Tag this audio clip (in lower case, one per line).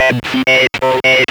human voice
speech